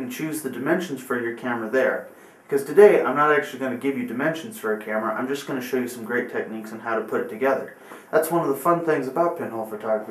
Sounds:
speech

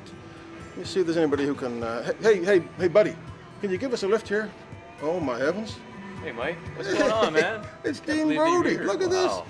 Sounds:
music, speech

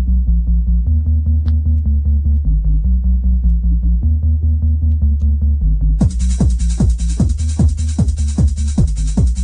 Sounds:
music

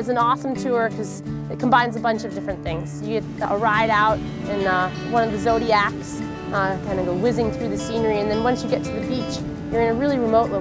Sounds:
boat, music, speech

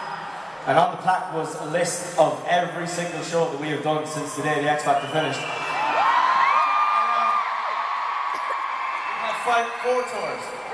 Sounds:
speech, monologue, male speech

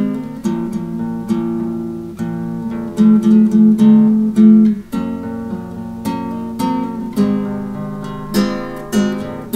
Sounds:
plucked string instrument, guitar, musical instrument, music, acoustic guitar

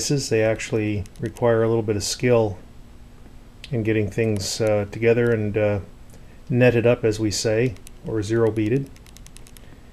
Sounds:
speech

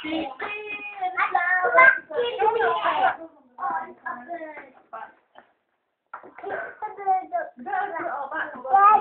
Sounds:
kid speaking

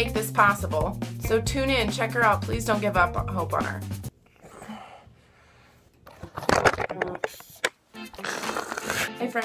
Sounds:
inside a small room, speech, music

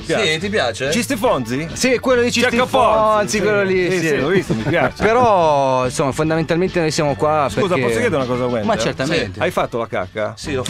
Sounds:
music, speech

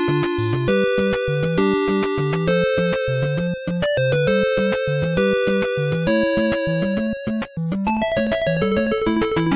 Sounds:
theme music, music

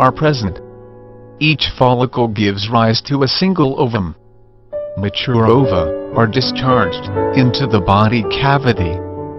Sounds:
speech, music

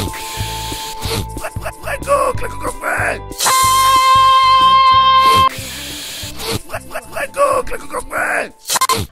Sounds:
music, speech

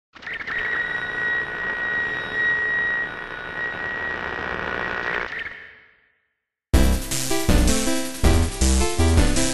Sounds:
music

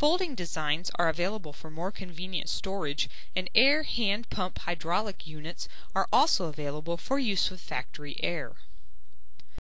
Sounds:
speech

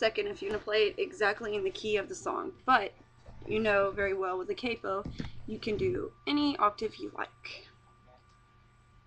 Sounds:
plucked string instrument, acoustic guitar, musical instrument, music, speech, guitar

